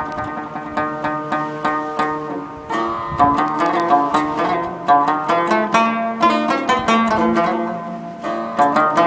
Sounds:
music

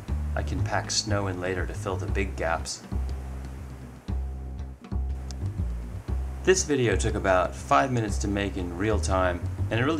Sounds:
speech, music

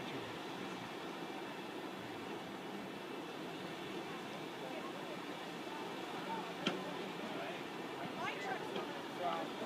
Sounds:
speech, vehicle

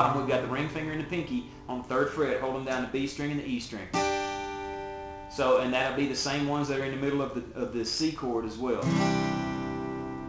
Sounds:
guitar, music, musical instrument, speech, strum, plucked string instrument

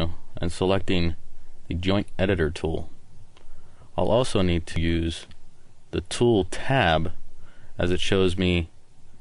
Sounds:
speech

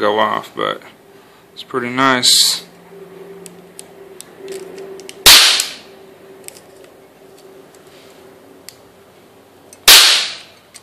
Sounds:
cap gun shooting

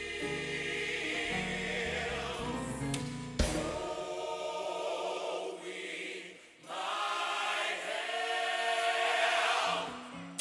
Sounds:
music

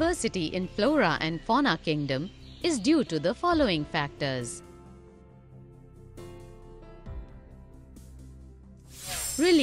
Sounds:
music, speech

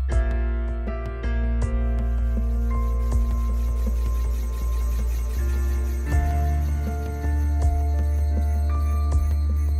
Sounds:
music

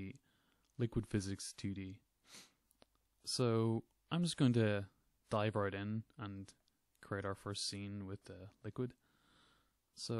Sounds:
speech

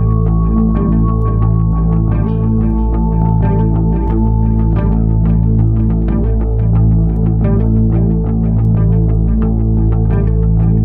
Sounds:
music

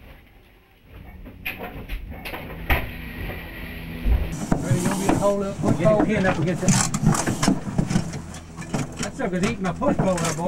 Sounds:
speech

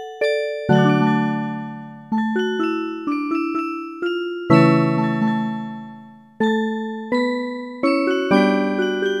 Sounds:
jingle (music), music

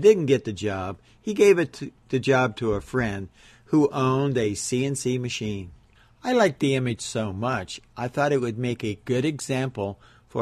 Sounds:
speech

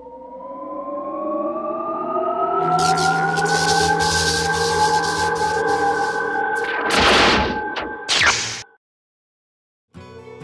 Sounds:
music

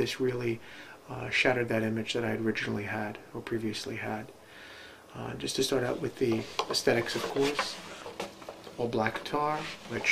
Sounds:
speech

